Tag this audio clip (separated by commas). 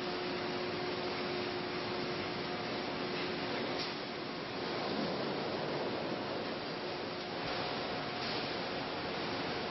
Pink noise